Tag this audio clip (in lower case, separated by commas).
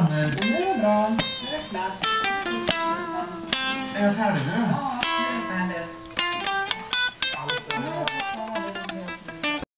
music, guitar, speech, musical instrument